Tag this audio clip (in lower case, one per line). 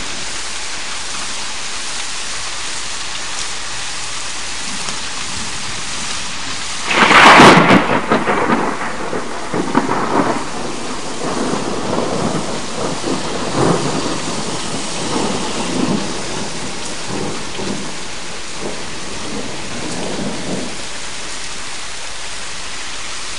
thunderstorm
rain
water
thunder